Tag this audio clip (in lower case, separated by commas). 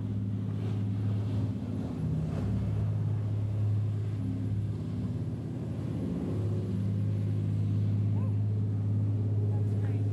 speech, outside, urban or man-made